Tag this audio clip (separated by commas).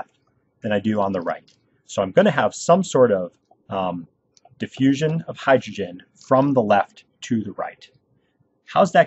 monologue